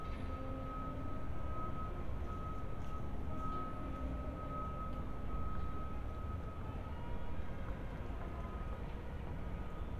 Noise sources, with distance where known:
reverse beeper, far

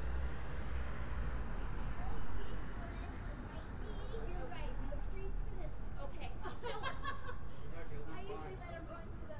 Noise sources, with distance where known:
person or small group talking

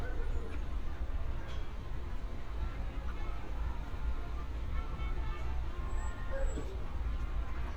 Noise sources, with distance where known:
music from an unclear source, far
person or small group talking, near
dog barking or whining

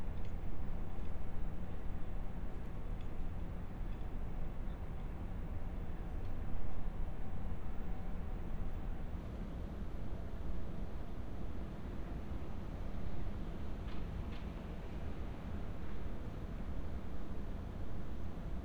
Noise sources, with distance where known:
background noise

